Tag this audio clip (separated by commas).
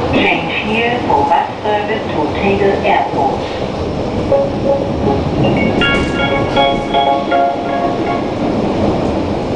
Music, Speech